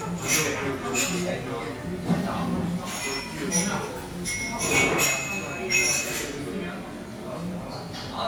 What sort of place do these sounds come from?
restaurant